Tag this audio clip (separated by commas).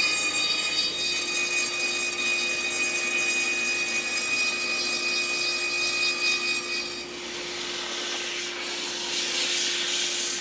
Tools